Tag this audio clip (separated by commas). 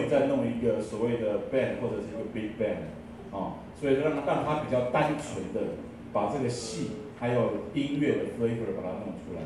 Speech